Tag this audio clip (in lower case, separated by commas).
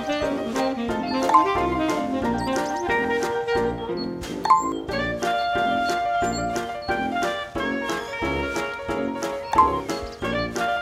music